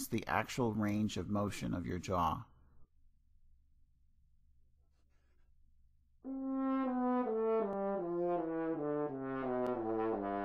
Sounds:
playing french horn

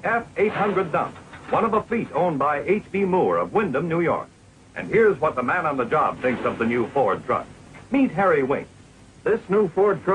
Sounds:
Speech, Vehicle

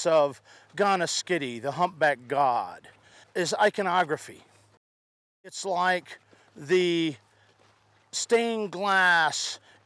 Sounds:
Speech

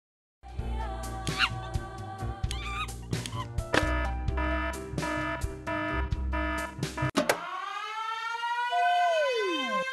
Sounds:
Siren, Music

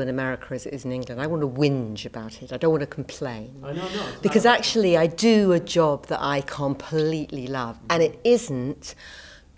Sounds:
Speech

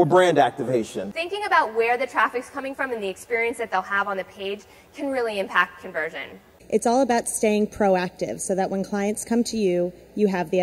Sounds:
Speech

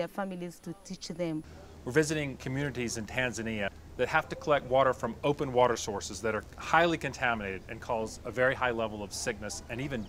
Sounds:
Speech

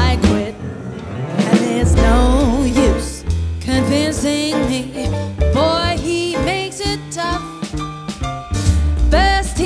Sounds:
Music, Rhythm and blues

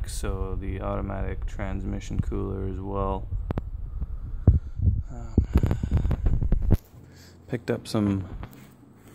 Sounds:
Speech

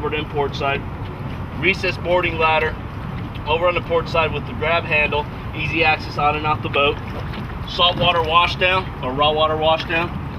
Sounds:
speedboat, Vehicle, Speech, Water vehicle

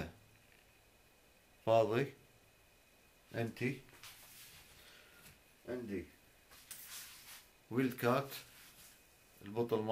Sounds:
Speech

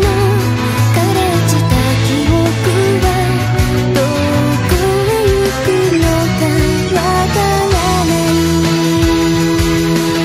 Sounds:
fiddle, Music, Musical instrument

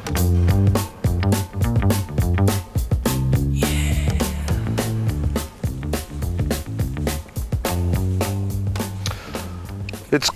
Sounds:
Music

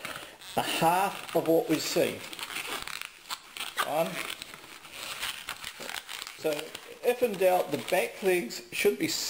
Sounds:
Speech, inside a small room

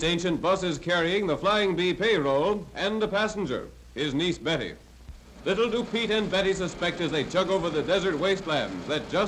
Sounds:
Speech

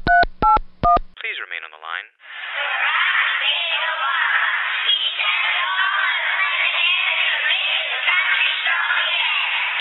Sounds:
Music, Speech

